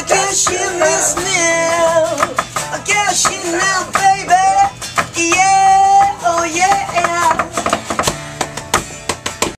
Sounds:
music
tender music

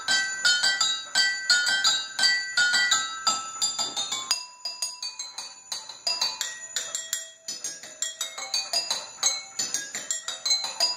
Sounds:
glass

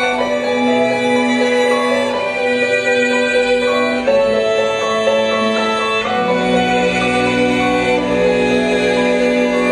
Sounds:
sad music
music

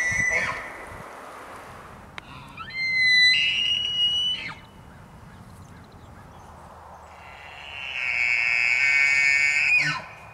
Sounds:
elk bugling

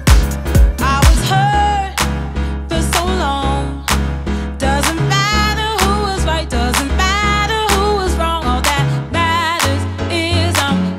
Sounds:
music

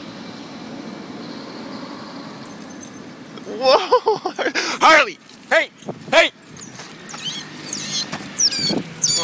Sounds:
animal
pets
dog
speech

